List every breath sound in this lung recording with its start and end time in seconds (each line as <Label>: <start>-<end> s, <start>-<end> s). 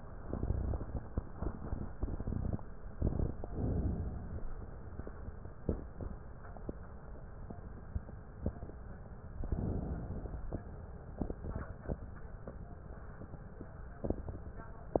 Inhalation: 3.44-4.49 s, 9.42-10.46 s